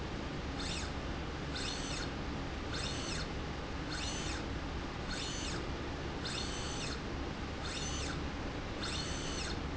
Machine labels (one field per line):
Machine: slide rail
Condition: normal